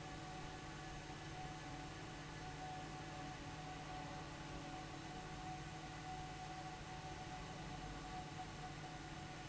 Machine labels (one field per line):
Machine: fan